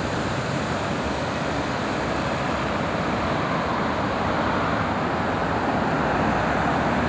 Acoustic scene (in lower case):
street